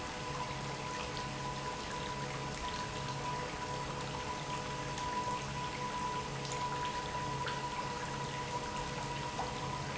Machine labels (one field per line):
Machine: pump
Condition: normal